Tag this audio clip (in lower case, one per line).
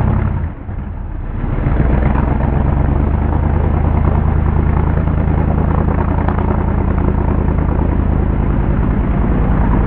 vehicle